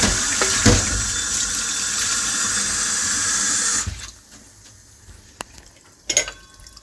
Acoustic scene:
kitchen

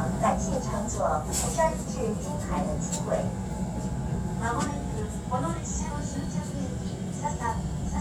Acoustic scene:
subway train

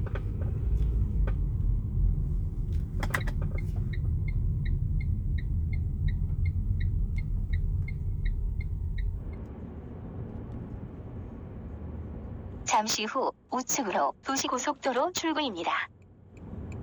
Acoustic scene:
car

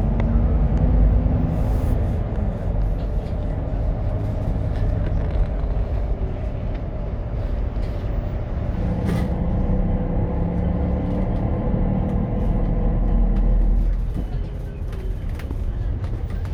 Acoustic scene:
bus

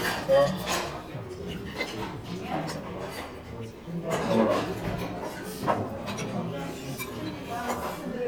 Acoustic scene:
crowded indoor space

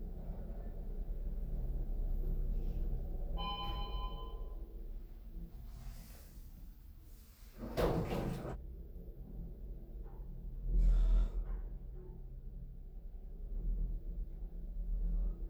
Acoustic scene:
elevator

